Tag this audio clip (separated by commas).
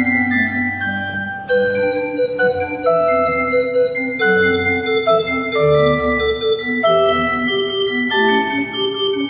Organ, Hammond organ